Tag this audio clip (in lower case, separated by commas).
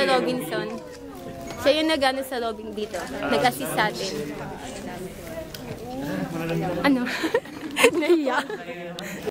male speech, woman speaking, speech synthesizer, speech, conversation